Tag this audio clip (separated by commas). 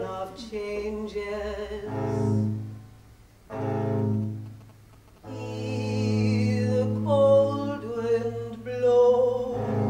Double bass